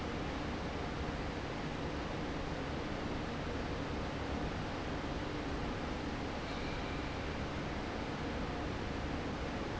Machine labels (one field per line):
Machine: fan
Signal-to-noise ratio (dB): -6 dB